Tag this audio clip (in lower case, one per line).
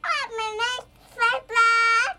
human voice
speech